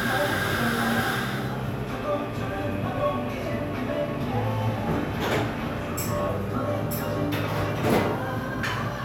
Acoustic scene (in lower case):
cafe